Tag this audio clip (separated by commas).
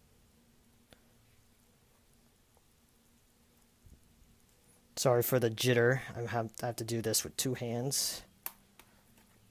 Speech, Silence, inside a small room